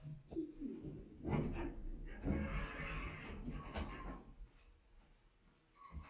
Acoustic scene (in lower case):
elevator